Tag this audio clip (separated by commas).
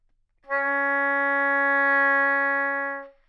Wind instrument, Music, Musical instrument